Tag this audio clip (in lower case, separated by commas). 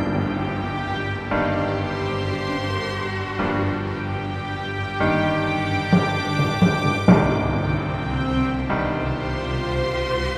background music, music